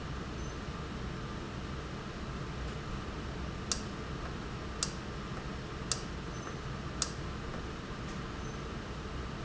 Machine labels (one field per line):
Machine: valve